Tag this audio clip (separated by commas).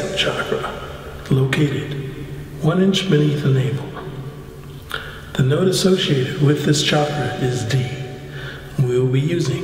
Speech